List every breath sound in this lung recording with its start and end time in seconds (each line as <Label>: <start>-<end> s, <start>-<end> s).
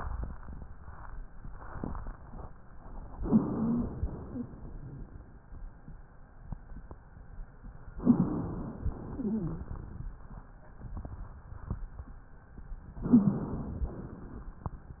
Inhalation: 3.17-4.02 s, 8.03-8.96 s, 13.07-13.95 s
Exhalation: 4.14-4.99 s, 8.97-10.06 s, 13.93-14.80 s
Wheeze: 3.17-4.02 s, 4.14-4.52 s, 8.03-8.41 s, 9.13-9.72 s, 13.07-13.51 s